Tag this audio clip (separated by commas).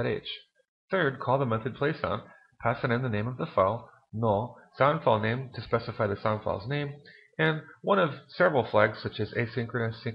Speech